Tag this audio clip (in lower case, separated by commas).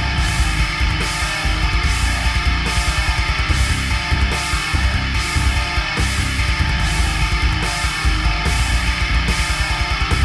music